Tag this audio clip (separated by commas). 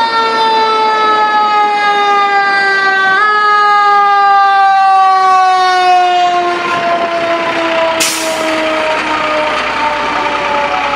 fire truck siren